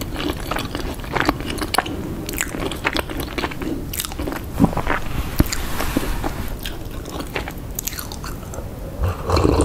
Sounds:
people eating crisps

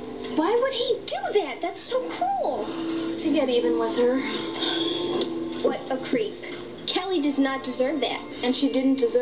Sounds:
music
speech

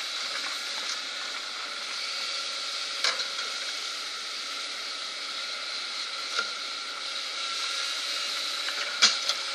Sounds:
vehicle

